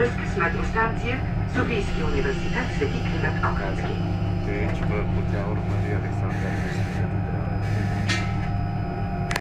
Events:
[0.00, 1.17] female speech
[0.00, 9.39] bus
[1.46, 3.32] female speech
[3.43, 3.97] male speech
[4.46, 7.05] male speech
[8.06, 8.47] car horn
[9.27, 9.39] generic impact sounds

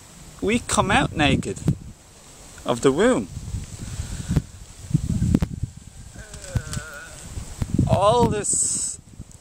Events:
[0.00, 9.40] wind
[0.44, 1.67] male speech
[0.73, 1.98] wind noise (microphone)
[2.66, 3.23] male speech
[3.18, 4.42] wind noise (microphone)
[3.79, 4.38] breathing
[4.80, 5.64] wind noise (microphone)
[5.76, 6.22] wind noise (microphone)
[6.10, 7.11] human voice
[6.32, 6.73] generic impact sounds
[6.32, 6.81] wind noise (microphone)
[7.14, 9.40] wind noise (microphone)
[7.85, 8.97] male speech
[9.28, 9.34] clicking

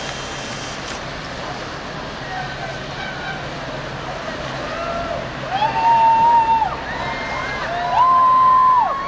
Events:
[0.00, 1.00] mechanisms
[0.00, 9.05] ship
[0.00, 9.05] wind
[0.03, 0.09] tick
[0.81, 0.96] generic impact sounds
[1.18, 1.26] tick
[1.35, 9.05] hubbub
[2.91, 3.48] generic impact sounds
[4.53, 5.12] shout
[5.40, 9.05] shout
[7.58, 7.68] tick
[7.94, 8.01] tick

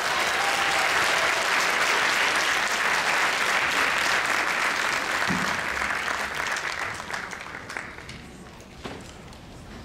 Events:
[0.00, 8.01] clapping
[0.00, 9.84] background noise
[1.14, 1.39] whoop
[8.79, 9.05] tap

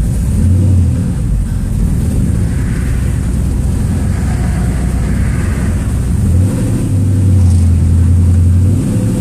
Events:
[0.00, 9.20] honking
[2.33, 6.02] car passing by

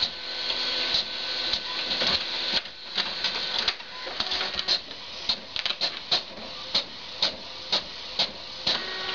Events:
[0.00, 9.14] printer
[0.44, 0.53] tap
[2.47, 2.66] tap
[3.48, 3.71] tap
[4.14, 4.68] tap
[5.47, 5.68] tap
[5.90, 5.99] tap

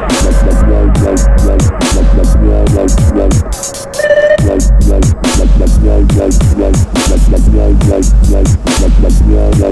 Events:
[0.00, 9.71] music
[0.00, 9.71] sound effect

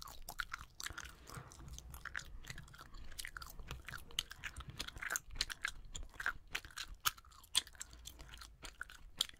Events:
[0.00, 2.27] mastication
[0.43, 0.72] wind noise (microphone)
[0.91, 1.32] scrape
[1.18, 1.41] generic impact sounds
[1.21, 2.81] wind noise (microphone)
[2.37, 6.35] mastication
[3.54, 4.14] wind noise (microphone)
[4.51, 4.99] wind noise (microphone)
[5.24, 5.50] wind noise (microphone)
[5.86, 6.27] wind noise (microphone)
[6.46, 8.47] mastication
[8.60, 9.35] mastication

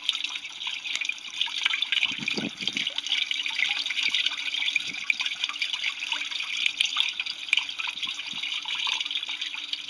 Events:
[0.00, 9.85] dribble
[0.00, 9.85] wind
[2.10, 2.86] wind noise (microphone)
[3.96, 4.47] wind noise (microphone)
[4.83, 5.09] wind noise (microphone)
[7.78, 8.44] wind noise (microphone)

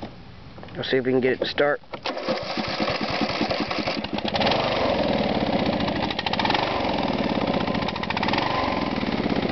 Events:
[0.00, 9.51] background noise
[0.55, 0.69] generic impact sounds
[0.72, 1.75] male speech
[1.89, 2.06] generic impact sounds
[2.04, 9.51] lawn mower

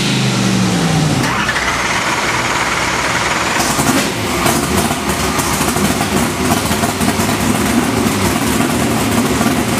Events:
[0.00, 1.29] accelerating
[0.00, 9.75] medium engine (mid frequency)
[1.27, 3.70] engine starting
[3.69, 9.75] accelerating

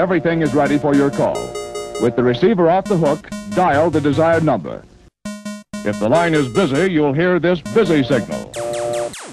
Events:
[0.00, 1.39] speech synthesizer
[0.00, 5.10] music
[1.99, 3.22] speech synthesizer
[3.50, 4.83] speech synthesizer
[5.24, 9.32] music
[5.82, 8.48] speech synthesizer
[8.54, 9.10] busy signal
[8.54, 9.32] sound effect

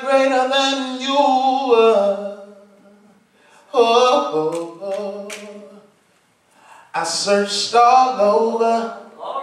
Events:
[0.00, 3.16] male singing
[0.00, 9.42] background noise
[3.26, 3.68] breathing
[3.70, 5.90] male singing
[4.49, 4.63] finger snapping
[4.87, 5.03] finger snapping
[5.28, 5.42] finger snapping
[5.92, 6.38] surface contact
[6.50, 6.90] breathing
[6.92, 9.05] male singing

